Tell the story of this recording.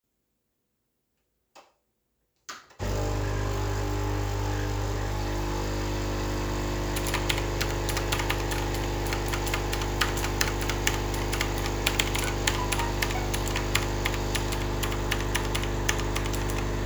I made some coffee while typing something on my pc and receiving a notification on my phone